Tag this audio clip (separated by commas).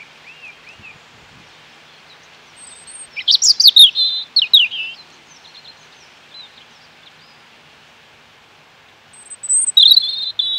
bird chirping